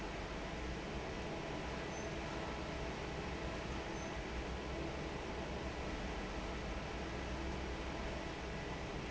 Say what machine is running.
fan